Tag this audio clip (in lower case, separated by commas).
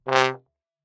musical instrument, music, brass instrument